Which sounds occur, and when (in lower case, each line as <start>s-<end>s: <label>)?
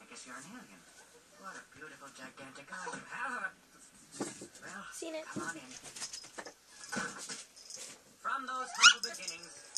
0.0s-0.6s: man speaking
0.0s-9.7s: speech babble
1.4s-2.5s: man speaking
4.6s-5.6s: man speaking
4.8s-5.6s: woman speaking
8.1s-9.1s: man speaking
8.7s-9.4s: bark